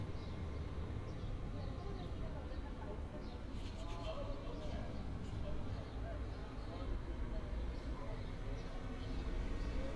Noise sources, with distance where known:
unidentified human voice

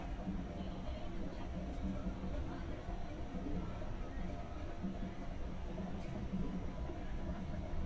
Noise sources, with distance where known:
music from a fixed source, far; unidentified human voice, far

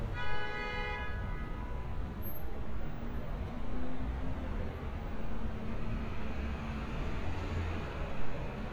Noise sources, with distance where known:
medium-sounding engine, far; car horn, near

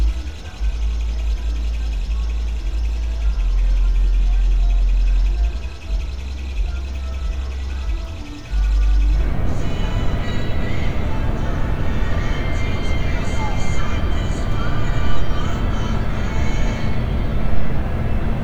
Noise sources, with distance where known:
music from an unclear source

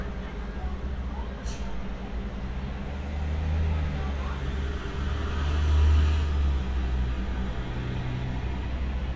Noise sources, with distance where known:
medium-sounding engine, near; reverse beeper, far; person or small group talking, far

